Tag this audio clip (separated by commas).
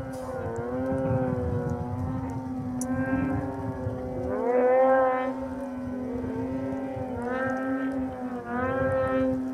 Vehicle, outside, rural or natural